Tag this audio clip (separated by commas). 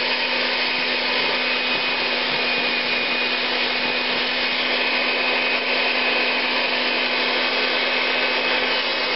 Blender